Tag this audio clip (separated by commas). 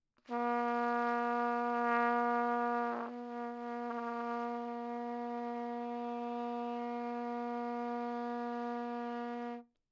Music, Musical instrument, Trumpet, Brass instrument